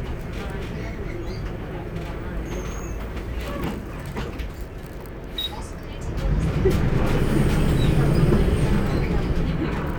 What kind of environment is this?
bus